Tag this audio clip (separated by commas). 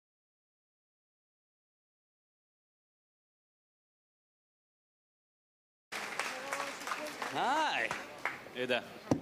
Speech, Applause